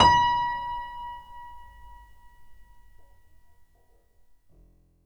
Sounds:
musical instrument, keyboard (musical), music, piano

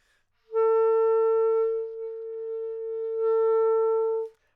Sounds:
woodwind instrument, musical instrument, music

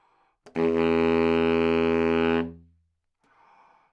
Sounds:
musical instrument, wind instrument, music

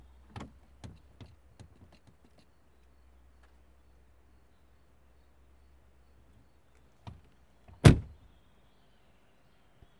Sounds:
domestic sounds, door, vehicle, chirp, animal, wild animals, bird call, motor vehicle (road), slam, bird, car

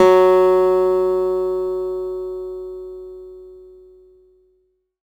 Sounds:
musical instrument, guitar, acoustic guitar, music, plucked string instrument

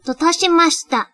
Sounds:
human voice, speech, female speech

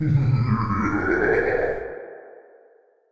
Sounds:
laughter, human voice

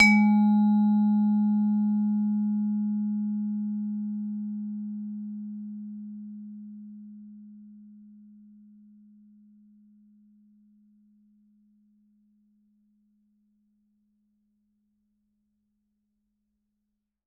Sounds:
musical instrument, percussion, music, mallet percussion

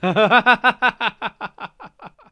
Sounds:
human voice, laughter

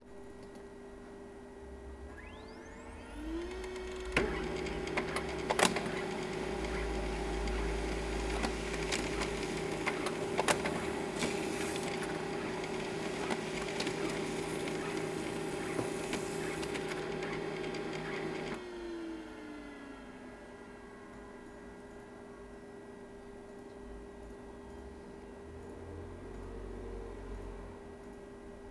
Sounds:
printer, mechanisms

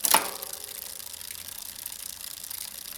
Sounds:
bicycle, vehicle

